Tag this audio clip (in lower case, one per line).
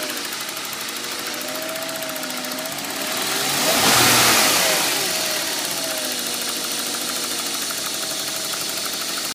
idling
vroom
engine
vehicle
medium engine (mid frequency)